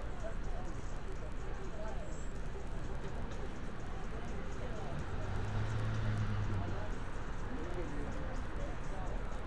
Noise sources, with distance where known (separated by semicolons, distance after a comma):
person or small group talking